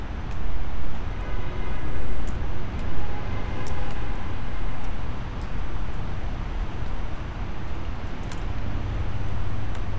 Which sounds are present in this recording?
engine of unclear size, car horn